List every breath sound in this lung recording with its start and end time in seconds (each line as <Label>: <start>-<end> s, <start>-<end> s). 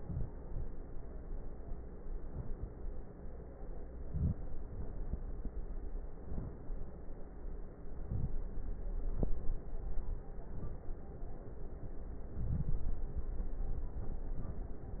Inhalation: 4.04-4.62 s, 6.16-6.66 s, 7.96-8.43 s, 12.32-13.11 s
Crackles: 4.04-4.62 s, 12.32-13.11 s